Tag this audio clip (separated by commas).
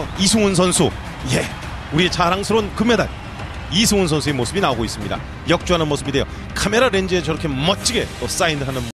Speech, Music